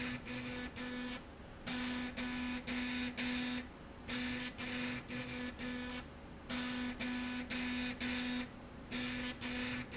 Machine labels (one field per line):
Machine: slide rail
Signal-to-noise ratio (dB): 6 dB